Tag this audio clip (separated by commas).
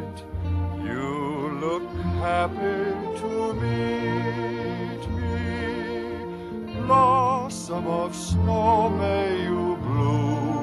Music, Soundtrack music